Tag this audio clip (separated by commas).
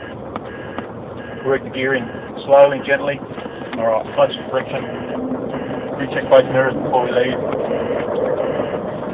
Speech, Vehicle